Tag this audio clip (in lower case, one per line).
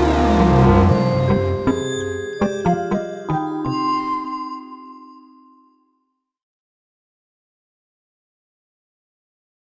music